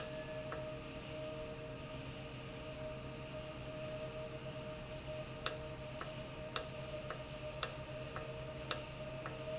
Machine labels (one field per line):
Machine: valve